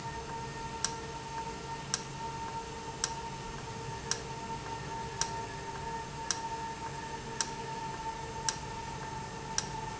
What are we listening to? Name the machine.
valve